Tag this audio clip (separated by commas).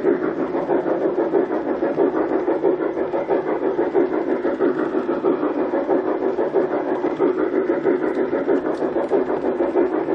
train whistling